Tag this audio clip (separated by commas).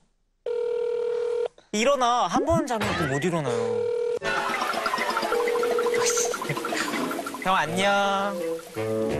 Speech, Music, Telephone, inside a small room, Telephone dialing